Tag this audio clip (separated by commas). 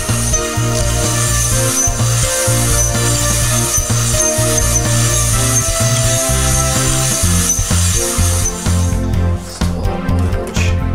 inside a small room, Music